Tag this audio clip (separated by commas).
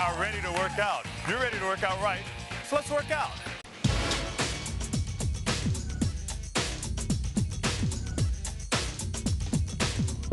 Music, Speech